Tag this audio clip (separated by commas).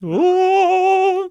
Human voice, Singing, Male singing